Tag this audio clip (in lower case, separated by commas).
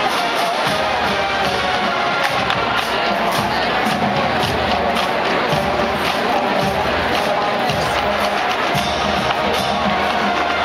speech, music